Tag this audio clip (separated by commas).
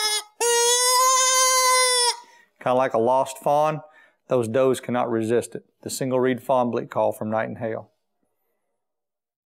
Speech, Sheep